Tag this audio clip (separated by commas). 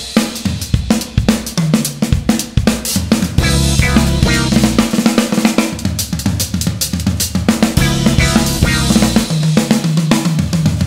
Drum kit, Musical instrument, Music, Guitar, Plucked string instrument, Drum, Percussion, Snare drum